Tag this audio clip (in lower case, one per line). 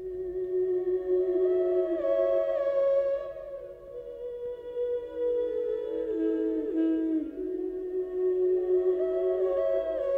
music